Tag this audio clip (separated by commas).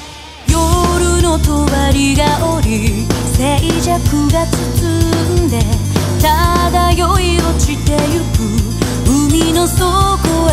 Music, Sound effect